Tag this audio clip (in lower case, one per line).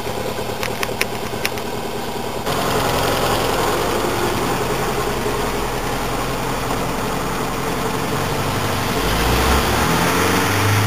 vehicle
engine